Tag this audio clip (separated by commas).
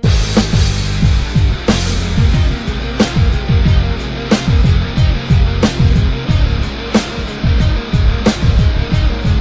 Soundtrack music, Music